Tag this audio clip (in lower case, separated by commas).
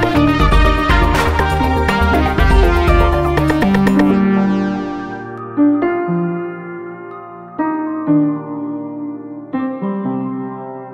synthesizer